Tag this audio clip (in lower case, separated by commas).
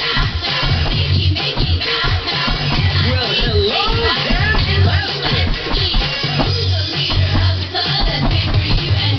music, speech